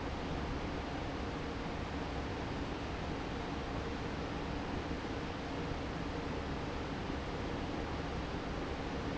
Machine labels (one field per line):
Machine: fan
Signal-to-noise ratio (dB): -6 dB